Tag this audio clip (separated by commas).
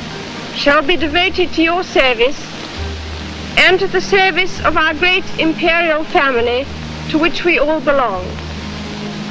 Female speech, Speech, Music, Narration